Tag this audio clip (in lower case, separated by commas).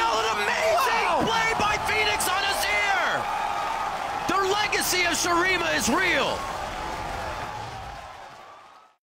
speech